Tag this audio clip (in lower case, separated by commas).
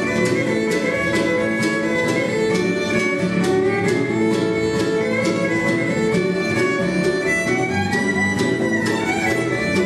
bluegrass, blues, country, music